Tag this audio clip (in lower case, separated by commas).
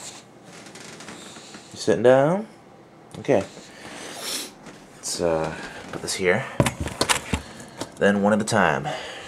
speech